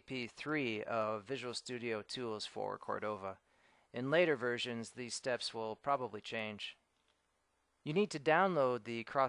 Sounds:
Speech

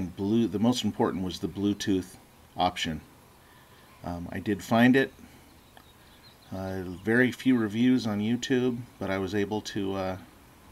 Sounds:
Speech

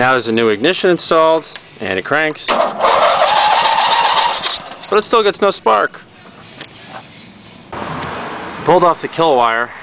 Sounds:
Speech

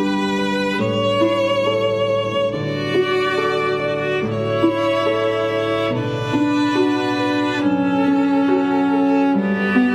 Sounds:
Music, Pizzicato, fiddle, Musical instrument

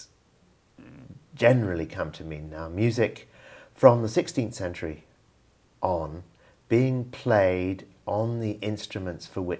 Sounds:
Speech

